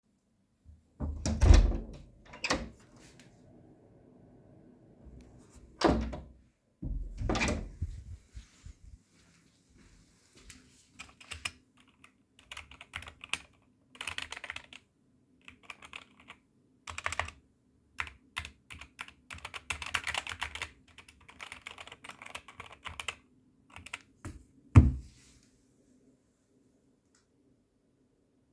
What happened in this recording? I went to the kitchen and then back into my room. After opening and closing the door I started typing my assignment